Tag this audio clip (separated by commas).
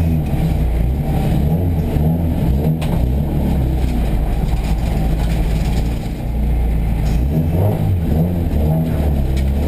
Car, Vehicle